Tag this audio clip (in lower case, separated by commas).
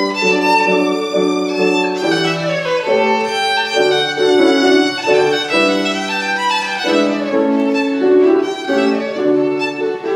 music, musical instrument, fiddle